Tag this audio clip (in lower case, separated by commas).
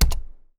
typing, home sounds